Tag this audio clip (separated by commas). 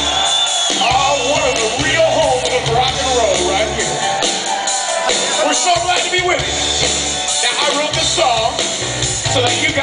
Singing